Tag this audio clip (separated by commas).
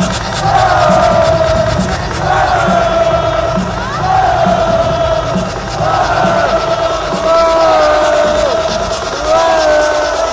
Music, Electronic music